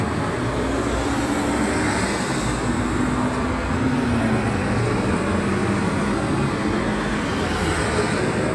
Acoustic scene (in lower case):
street